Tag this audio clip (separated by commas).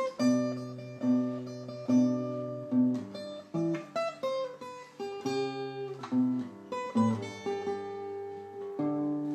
Acoustic guitar, Plucked string instrument, Guitar, Music, Musical instrument, Strum